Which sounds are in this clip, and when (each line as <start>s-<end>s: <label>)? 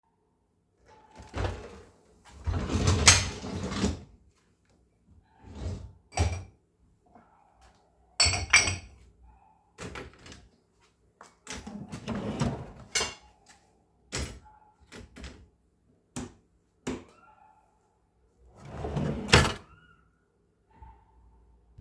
6.1s-6.6s: cutlery and dishes
8.1s-9.4s: cutlery and dishes
9.7s-10.3s: cutlery and dishes
12.8s-14.0s: cutlery and dishes
14.0s-14.4s: cutlery and dishes
14.9s-15.4s: cutlery and dishes
16.1s-17.1s: light switch
18.6s-19.7s: wardrobe or drawer